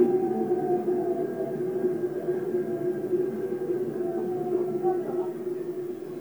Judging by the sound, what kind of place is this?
subway train